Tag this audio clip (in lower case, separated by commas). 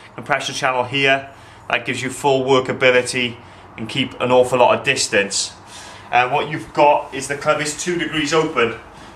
speech